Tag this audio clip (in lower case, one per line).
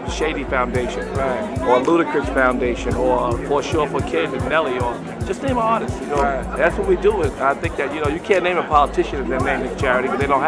speech
music